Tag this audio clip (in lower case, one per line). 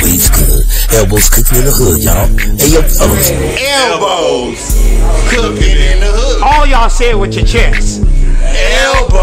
music
speech